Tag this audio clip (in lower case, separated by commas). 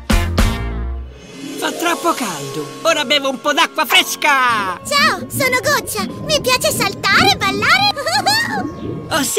speech, music